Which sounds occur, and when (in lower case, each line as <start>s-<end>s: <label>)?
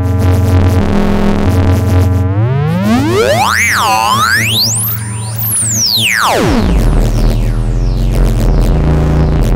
0.0s-9.5s: electronic tuner